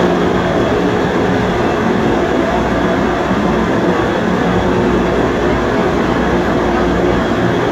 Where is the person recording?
on a subway train